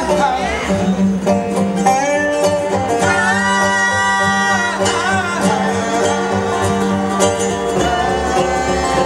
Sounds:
Music, Banjo, playing banjo, Musical instrument

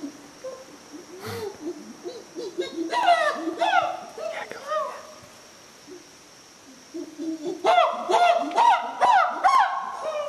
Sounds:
Speech, Animal

